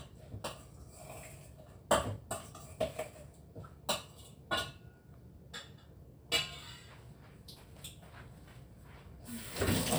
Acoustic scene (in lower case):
kitchen